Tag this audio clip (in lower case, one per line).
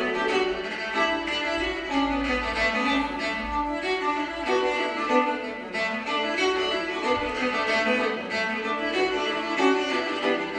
string section